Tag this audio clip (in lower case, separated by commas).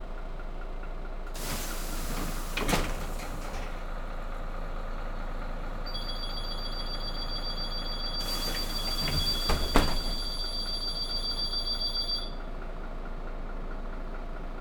bus, vehicle, alarm, motor vehicle (road)